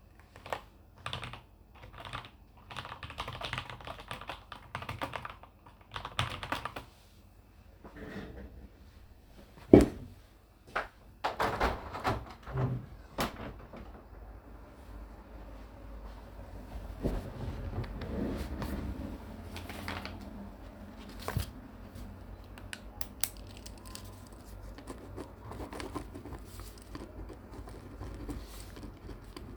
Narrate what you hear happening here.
I am typing on a keyboard, stand up from the table slightly moving the chair, open the window, sit back down slightly moving the chair, take a piece of paper, click the pen, write down some notes on the piece of paper.